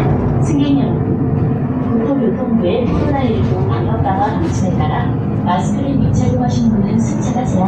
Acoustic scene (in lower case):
bus